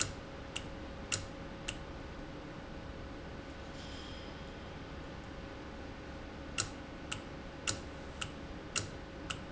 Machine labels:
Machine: valve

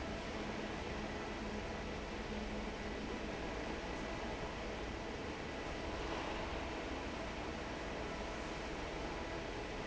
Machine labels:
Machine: fan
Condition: normal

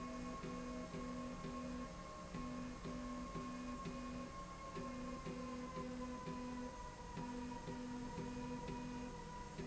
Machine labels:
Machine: slide rail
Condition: normal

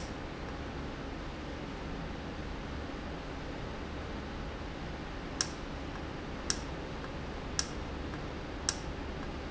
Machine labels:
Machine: valve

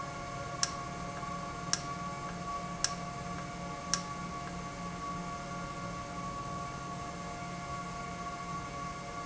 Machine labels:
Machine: valve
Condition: normal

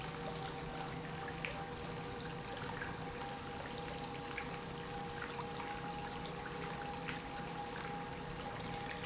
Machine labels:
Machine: pump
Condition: normal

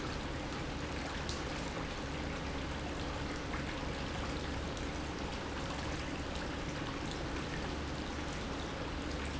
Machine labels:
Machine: pump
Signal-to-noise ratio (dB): -6 dB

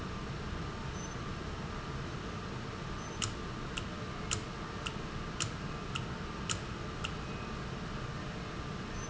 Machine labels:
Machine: valve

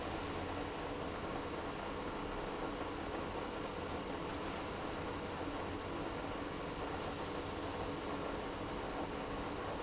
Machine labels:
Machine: pump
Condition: abnormal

